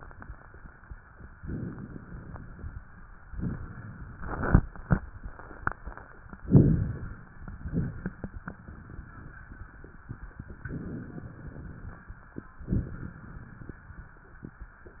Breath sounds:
Inhalation: 1.31-2.81 s, 6.45-7.25 s, 10.64-12.01 s
Exhalation: 7.59-8.41 s, 12.69-13.87 s
Rhonchi: 6.45-7.25 s
Crackles: 12.69-13.15 s

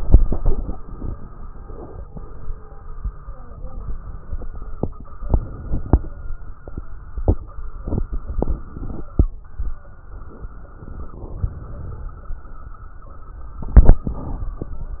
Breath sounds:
Inhalation: 10.80-12.14 s
Crackles: 10.80-12.14 s

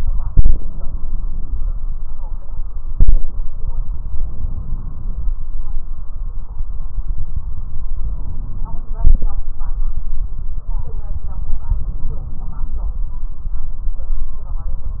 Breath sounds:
Inhalation: 0.66-1.57 s, 4.34-5.25 s, 7.93-8.85 s

